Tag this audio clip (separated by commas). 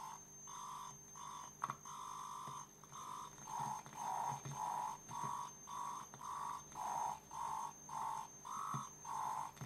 Theremin